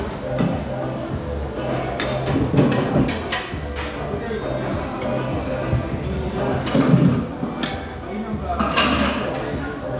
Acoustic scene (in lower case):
restaurant